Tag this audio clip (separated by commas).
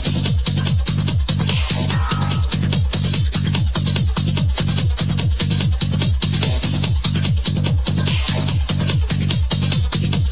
Electronic music, Techno, Music